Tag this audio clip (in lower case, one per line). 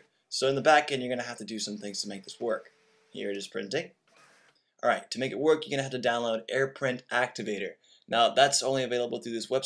speech